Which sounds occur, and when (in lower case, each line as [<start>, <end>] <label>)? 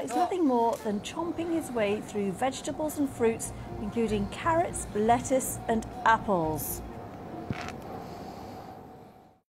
[0.00, 0.24] human voice
[0.00, 9.35] wind
[0.03, 3.45] woman speaking
[0.71, 9.35] motor vehicle (road)
[3.37, 6.51] music
[3.85, 5.50] woman speaking
[5.61, 5.80] woman speaking
[6.01, 6.77] woman speaking
[7.44, 7.67] biting
[7.94, 8.69] breathing